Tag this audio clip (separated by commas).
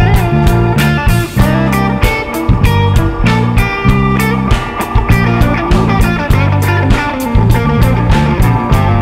Blues, Electric guitar, Strum, playing electric guitar, Guitar, Plucked string instrument, Music, Musical instrument